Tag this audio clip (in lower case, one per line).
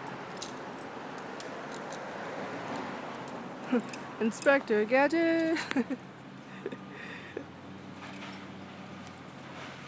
speech